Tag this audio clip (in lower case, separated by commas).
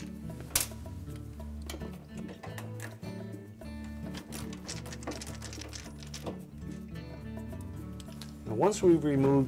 speech, music